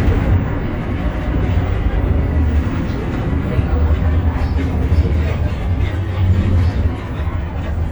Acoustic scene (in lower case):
bus